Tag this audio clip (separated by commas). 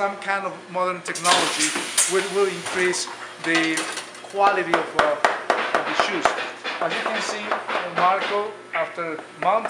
inside a small room, Speech, dishes, pots and pans